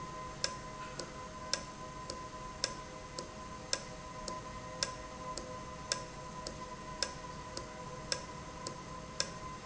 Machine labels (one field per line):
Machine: valve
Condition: normal